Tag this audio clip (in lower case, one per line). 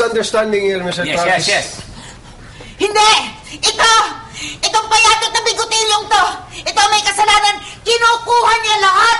speech